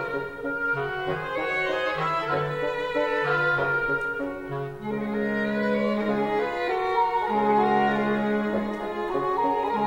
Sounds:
music, violin, musical instrument

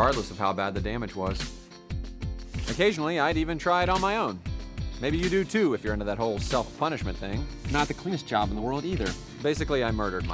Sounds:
music, speech

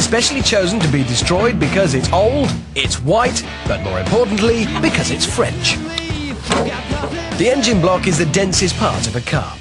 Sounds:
music, speech

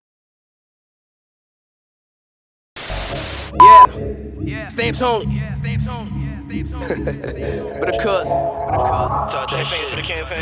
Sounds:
music

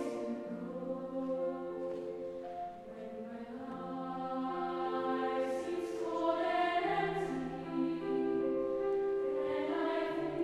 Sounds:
music, tender music

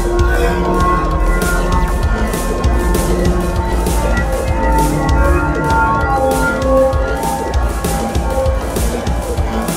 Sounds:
music, house music

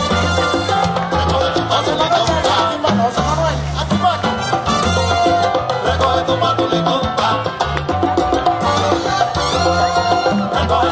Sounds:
crowd, music

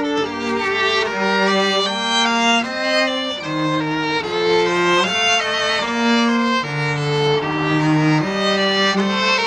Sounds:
fiddle, music, cello, musical instrument, playing cello

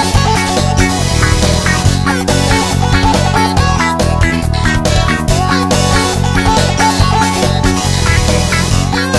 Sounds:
music, blues

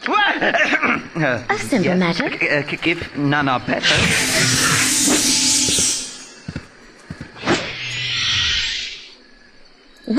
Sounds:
outside, rural or natural, speech

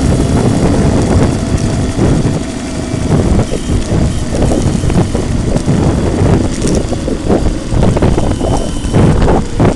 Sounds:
vehicle

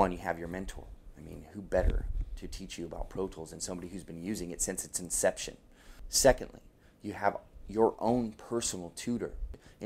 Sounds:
speech

